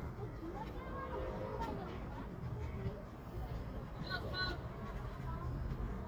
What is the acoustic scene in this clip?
residential area